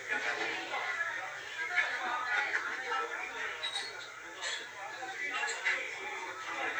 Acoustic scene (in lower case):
crowded indoor space